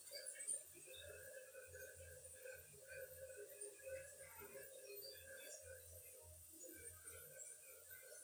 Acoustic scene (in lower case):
restroom